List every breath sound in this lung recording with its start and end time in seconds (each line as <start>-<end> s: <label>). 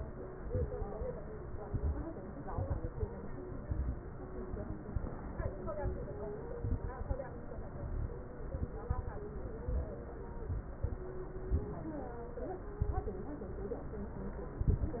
0.40-1.04 s: inhalation
0.40-1.04 s: crackles
1.63-2.16 s: inhalation
1.63-2.16 s: crackles
2.51-3.04 s: inhalation
2.51-3.04 s: crackles
3.61-4.14 s: inhalation
3.61-4.14 s: crackles
4.94-5.49 s: inhalation
4.94-5.49 s: crackles
6.59-7.22 s: inhalation
6.59-7.22 s: crackles
8.53-9.06 s: inhalation
8.53-9.06 s: crackles
10.49-11.02 s: inhalation
10.49-11.02 s: crackles
12.77-13.30 s: inhalation
12.77-13.30 s: crackles
14.57-15.00 s: inhalation
14.57-15.00 s: crackles